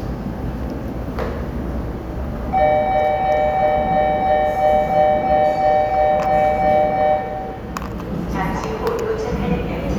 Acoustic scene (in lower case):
subway station